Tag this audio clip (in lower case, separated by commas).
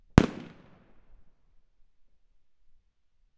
fireworks, explosion